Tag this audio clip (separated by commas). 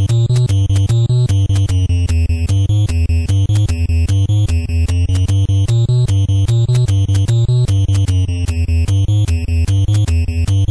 Music, Soundtrack music, Video game music